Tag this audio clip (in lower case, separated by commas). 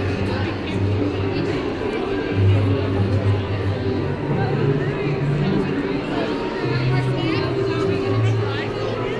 inside a public space, speech, music